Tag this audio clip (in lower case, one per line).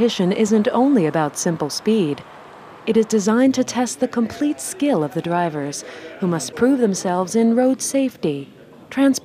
speech